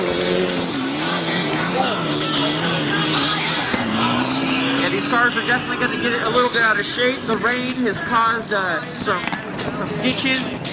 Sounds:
Speech, Music

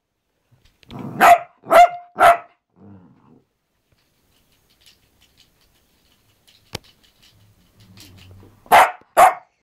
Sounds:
dog barking, canids, pets, Animal, Bark, Dog

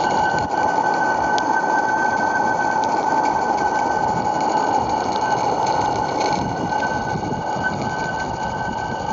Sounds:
Vehicle, Engine

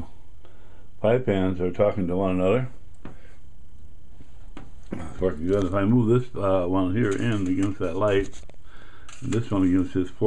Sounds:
Speech, inside a small room

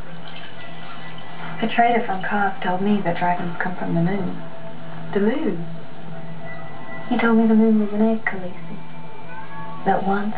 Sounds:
Speech

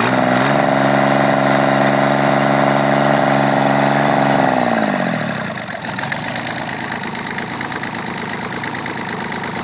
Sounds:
Engine

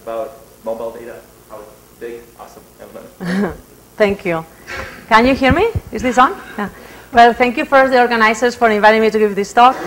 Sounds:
Speech

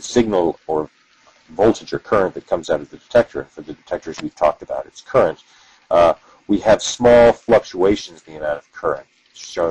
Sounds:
Speech

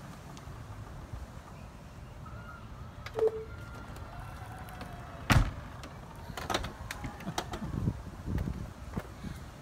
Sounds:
opening or closing car doors

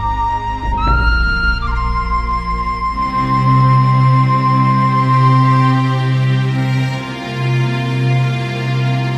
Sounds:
Music

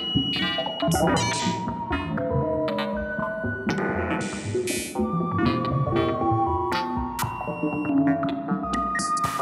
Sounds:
Music

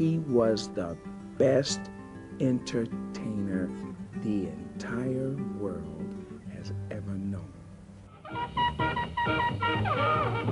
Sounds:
Music, Speech

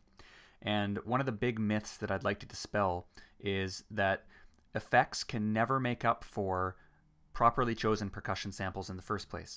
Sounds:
Narration, Speech, Speech synthesizer

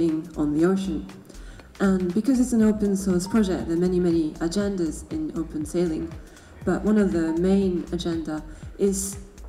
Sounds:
Music, Electronica, Speech

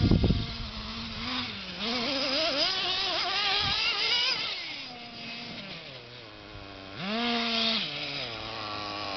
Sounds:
Speech

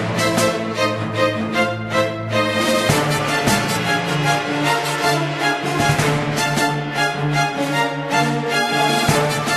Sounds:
Music

